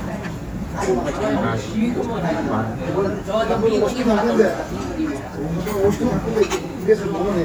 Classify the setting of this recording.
restaurant